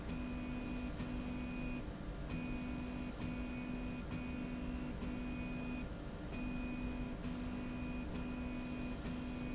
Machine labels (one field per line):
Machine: slide rail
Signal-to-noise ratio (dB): 0 dB